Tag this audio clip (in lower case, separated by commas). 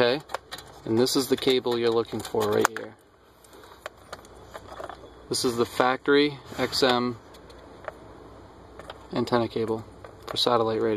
speech